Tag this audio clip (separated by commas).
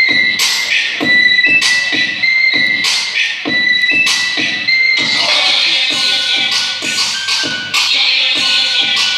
inside a public space, inside a large room or hall, Music